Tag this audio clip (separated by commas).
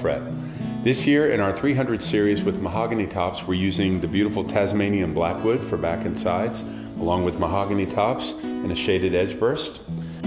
Musical instrument, Background music, Music, Speech, Guitar, Acoustic guitar